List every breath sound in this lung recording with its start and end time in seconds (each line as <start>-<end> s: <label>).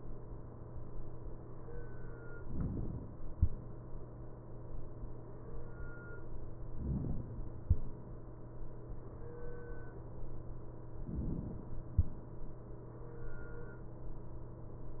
2.41-3.38 s: inhalation
6.69-7.67 s: inhalation
10.99-11.97 s: inhalation